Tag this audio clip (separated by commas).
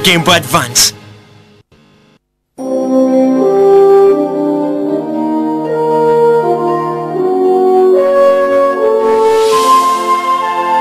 Speech, Music